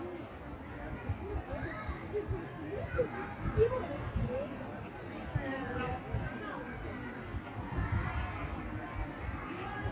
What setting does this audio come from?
park